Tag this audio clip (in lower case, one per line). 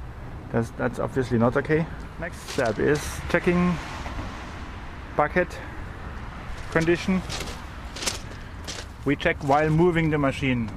vehicle
speech
outside, urban or man-made